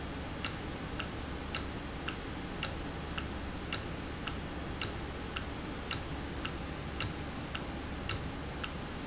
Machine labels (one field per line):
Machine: valve